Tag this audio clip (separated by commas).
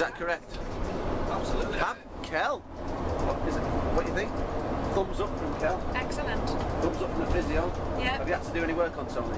Speech, outside, rural or natural, Vehicle